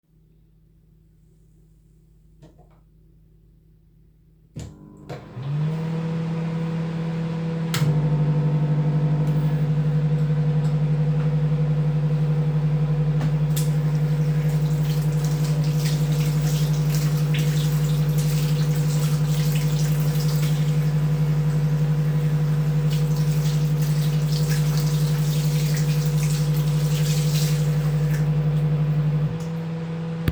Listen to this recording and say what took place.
Started the microwave and subsequently washed my hands